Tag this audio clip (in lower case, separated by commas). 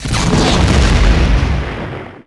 explosion